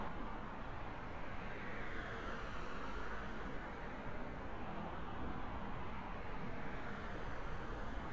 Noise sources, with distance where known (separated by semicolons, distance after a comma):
background noise